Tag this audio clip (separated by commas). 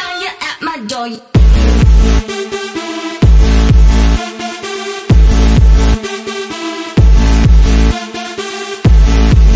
Dubstep, Music